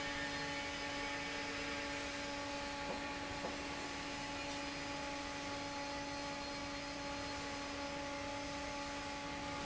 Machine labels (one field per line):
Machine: fan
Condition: normal